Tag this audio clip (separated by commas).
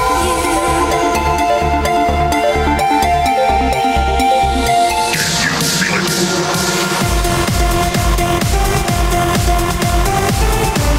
Music, Electronic music